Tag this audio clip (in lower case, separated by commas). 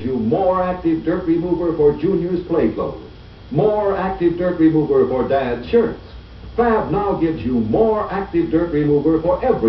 speech